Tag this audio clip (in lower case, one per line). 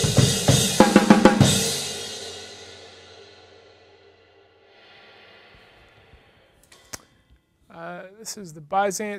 snare drum
rimshot
drum
bass drum
drum kit
percussion